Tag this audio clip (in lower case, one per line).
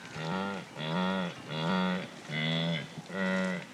animal